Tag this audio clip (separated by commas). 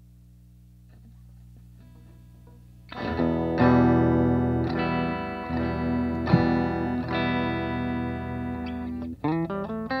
Guitar, Music, Plucked string instrument, Electronic tuner, Effects unit